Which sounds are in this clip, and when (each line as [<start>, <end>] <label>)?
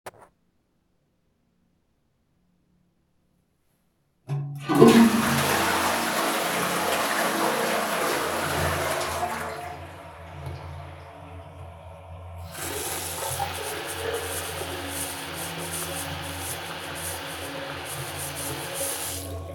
[4.28, 12.31] toilet flushing
[12.33, 19.53] running water